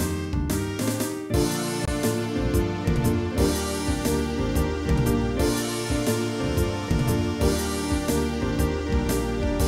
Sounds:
music

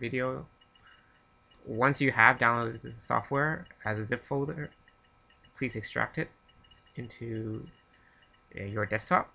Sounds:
speech

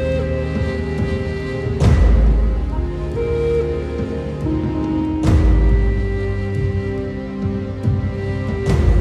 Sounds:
music

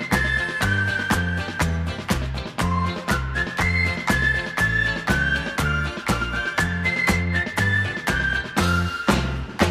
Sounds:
whistling
music

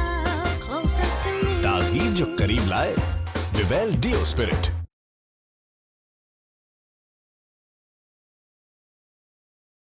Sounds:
music
speech

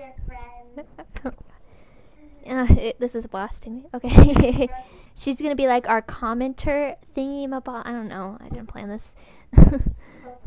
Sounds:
speech

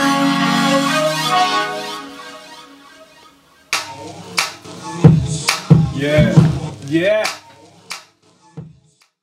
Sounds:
music

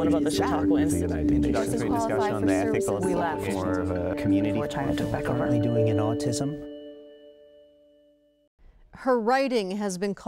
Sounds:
speech
music
female speech
conversation

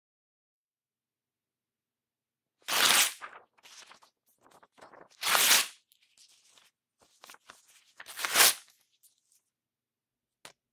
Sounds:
ripping paper

